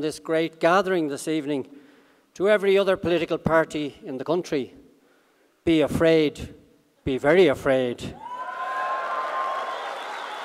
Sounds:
man speaking
speech

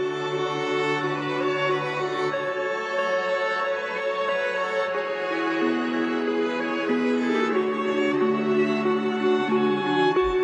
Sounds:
music
tender music

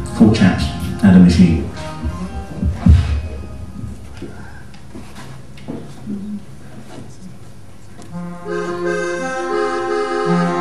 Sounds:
speech
music

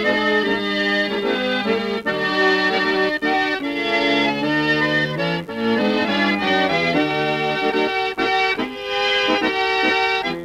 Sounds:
playing accordion

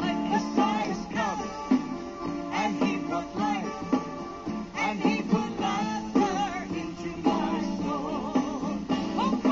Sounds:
music
female singing
male singing

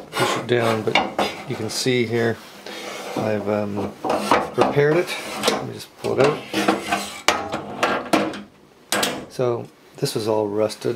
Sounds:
inside a large room or hall
speech

